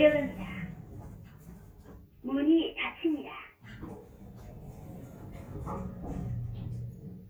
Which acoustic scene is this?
elevator